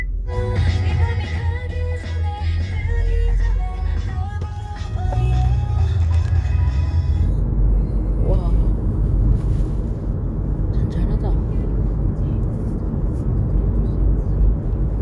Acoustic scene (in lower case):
car